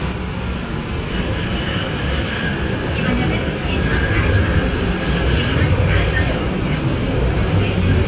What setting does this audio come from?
subway train